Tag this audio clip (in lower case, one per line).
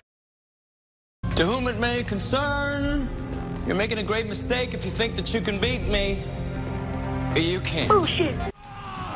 music
speech